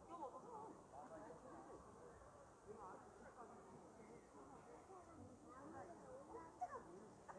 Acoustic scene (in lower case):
park